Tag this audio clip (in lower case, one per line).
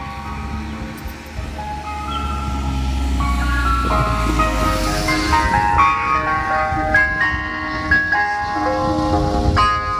ice cream van